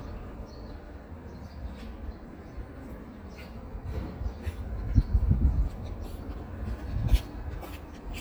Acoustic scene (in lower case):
residential area